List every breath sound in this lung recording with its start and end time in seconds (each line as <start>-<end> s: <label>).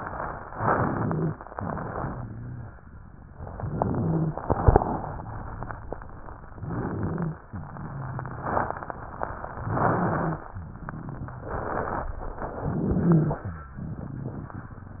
0.49-1.33 s: inhalation
0.49-1.33 s: crackles
1.52-2.64 s: exhalation
1.52-2.64 s: crackles
3.53-4.38 s: inhalation
3.53-4.38 s: crackles
4.44-5.81 s: exhalation
4.44-5.81 s: crackles
6.57-7.42 s: inhalation
6.57-7.42 s: crackles
7.74-9.47 s: exhalation
7.74-9.47 s: crackles
9.62-10.47 s: inhalation
9.62-10.47 s: crackles
11.40-12.20 s: exhalation
11.40-12.20 s: crackles
12.62-13.47 s: inhalation
12.62-13.47 s: crackles
13.81-14.61 s: exhalation
13.81-14.61 s: crackles